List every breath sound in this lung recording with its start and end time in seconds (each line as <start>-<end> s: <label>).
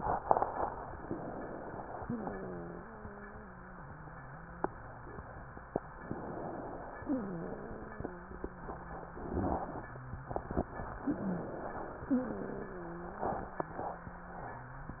0.96-1.97 s: inhalation
2.01-4.67 s: wheeze
6.04-7.06 s: inhalation
7.06-10.44 s: wheeze
11.11-12.12 s: inhalation
12.12-15.00 s: wheeze